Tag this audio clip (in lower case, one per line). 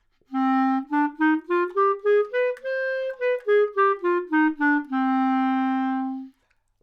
music
woodwind instrument
musical instrument